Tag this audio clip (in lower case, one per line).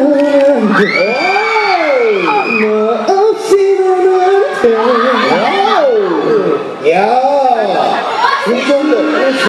male singing